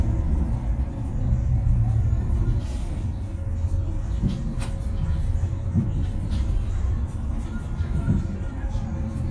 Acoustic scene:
bus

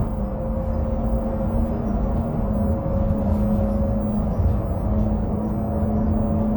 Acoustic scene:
bus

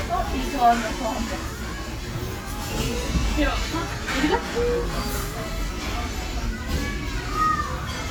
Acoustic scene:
restaurant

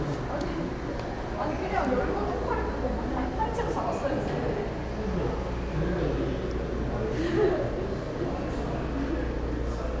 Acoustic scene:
subway station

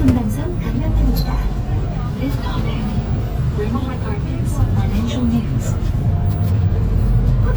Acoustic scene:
bus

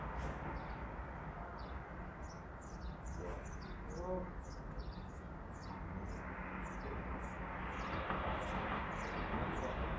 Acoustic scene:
residential area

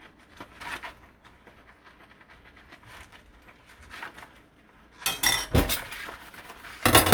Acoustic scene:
kitchen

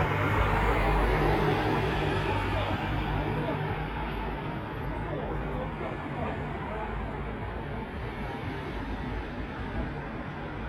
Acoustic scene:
street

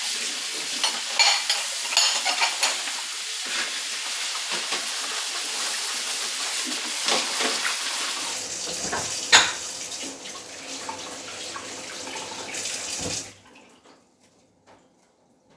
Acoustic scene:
kitchen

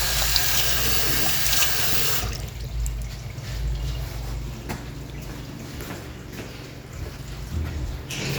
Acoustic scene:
restroom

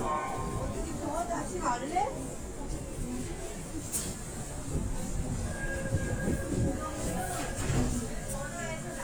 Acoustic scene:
subway train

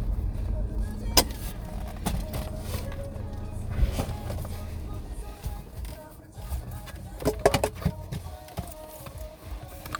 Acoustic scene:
car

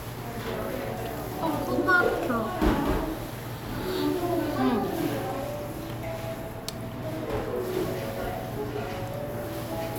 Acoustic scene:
cafe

